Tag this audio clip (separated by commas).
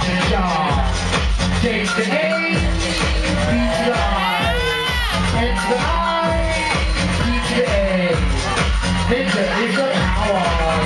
Music